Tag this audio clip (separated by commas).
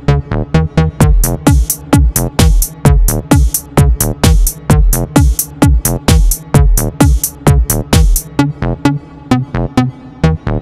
Music, Techno, Electronic music